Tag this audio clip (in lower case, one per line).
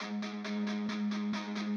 musical instrument
plucked string instrument
electric guitar
guitar
music